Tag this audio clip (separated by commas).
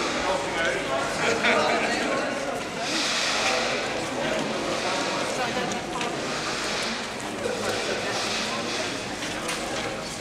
Speech